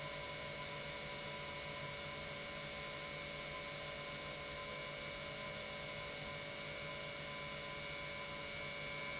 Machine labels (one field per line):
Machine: pump